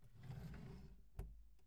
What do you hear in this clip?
drawer opening